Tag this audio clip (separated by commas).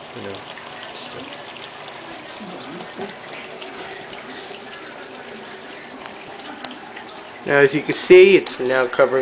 Speech